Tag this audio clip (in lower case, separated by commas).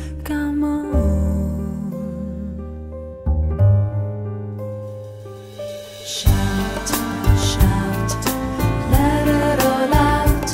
music